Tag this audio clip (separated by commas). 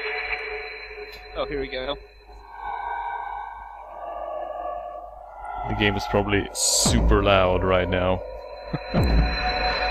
Speech